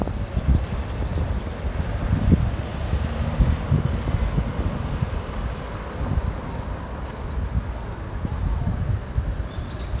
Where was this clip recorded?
on a street